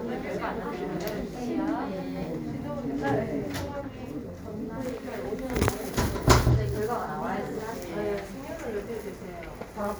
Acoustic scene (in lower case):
crowded indoor space